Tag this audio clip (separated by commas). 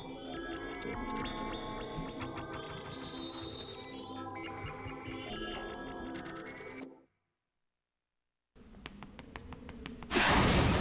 Music